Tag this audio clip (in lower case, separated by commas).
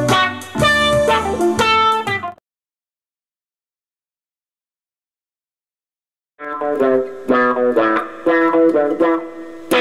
plucked string instrument, musical instrument, guitar, music